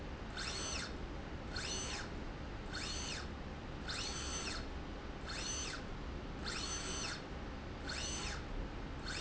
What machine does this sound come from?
slide rail